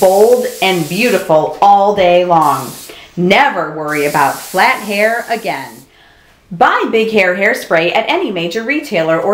A woman speaking with intermittent hissing